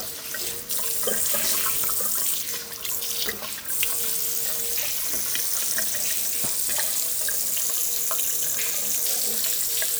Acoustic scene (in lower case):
restroom